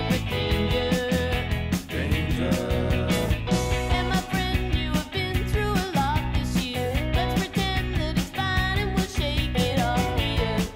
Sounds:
music

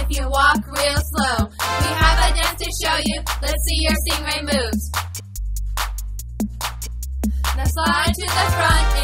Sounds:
music

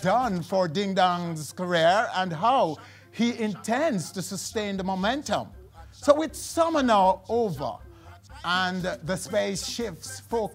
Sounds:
speech

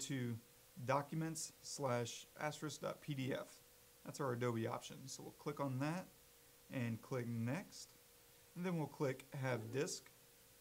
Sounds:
speech

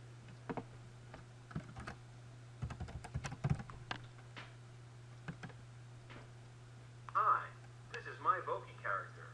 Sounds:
speech

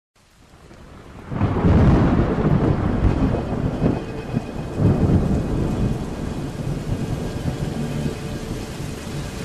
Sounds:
thunder
thunderstorm
rain

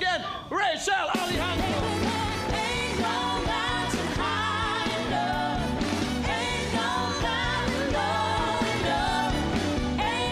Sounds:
speech
female singing
music

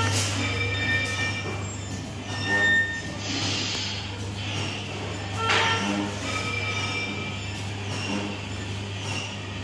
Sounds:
vehicle

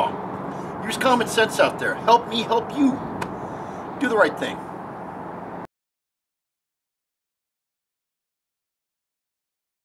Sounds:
vehicle

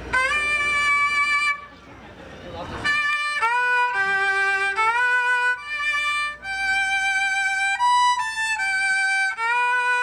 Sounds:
music
fiddle
speech
musical instrument

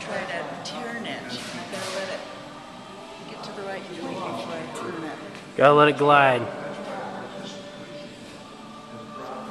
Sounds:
speech

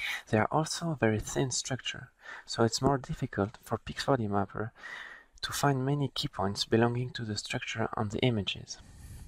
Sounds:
speech

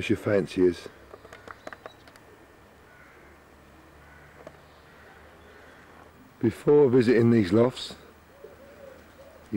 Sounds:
bird
coo
speech

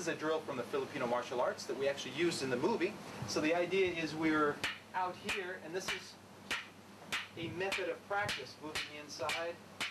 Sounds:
speech

